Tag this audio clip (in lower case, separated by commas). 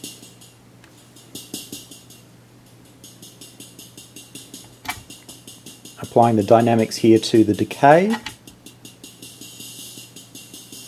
music, speech, musical instrument, synthesizer